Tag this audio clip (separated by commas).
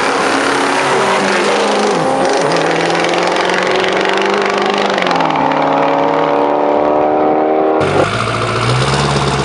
Car passing by